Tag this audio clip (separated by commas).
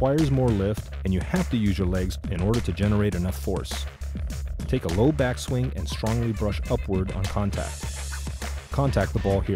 Speech, Music